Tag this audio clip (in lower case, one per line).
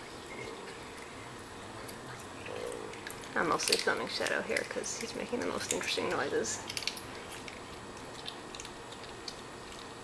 speech